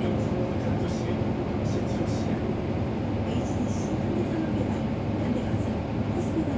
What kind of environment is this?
bus